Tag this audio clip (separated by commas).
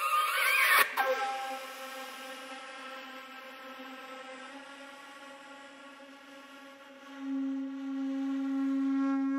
Flute, Classical music, Music